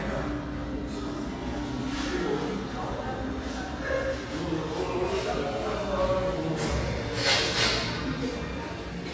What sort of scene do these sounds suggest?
cafe